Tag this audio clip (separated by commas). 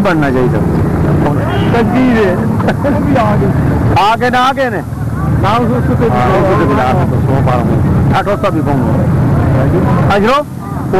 Speech